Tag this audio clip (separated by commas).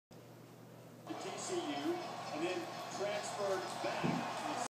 Speech